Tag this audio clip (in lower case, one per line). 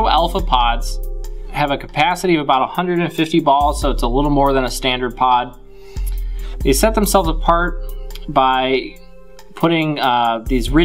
speech